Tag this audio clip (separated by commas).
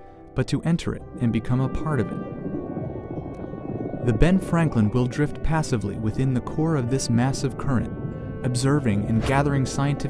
Speech, Music